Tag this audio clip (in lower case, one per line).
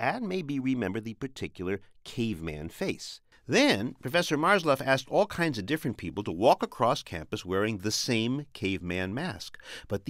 speech